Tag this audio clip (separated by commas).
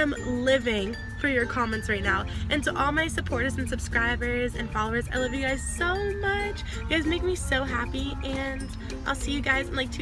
Music, Speech